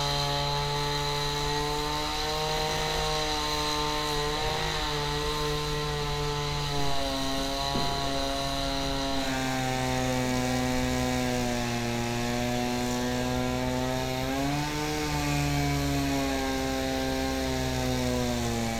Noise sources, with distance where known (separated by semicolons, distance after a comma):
unidentified powered saw